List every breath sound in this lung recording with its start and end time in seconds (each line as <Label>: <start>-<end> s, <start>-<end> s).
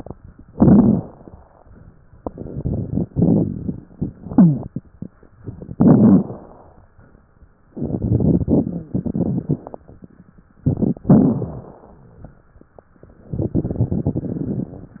Inhalation: 0.49-1.25 s, 5.73-6.49 s, 11.08-11.99 s
Exhalation: 2.18-4.25 s, 7.76-9.83 s, 13.28-14.95 s
Wheeze: 4.27-4.69 s
Crackles: 0.49-1.25 s, 2.18-4.25 s, 5.73-6.49 s, 7.76-9.83 s, 11.08-11.99 s, 13.28-14.95 s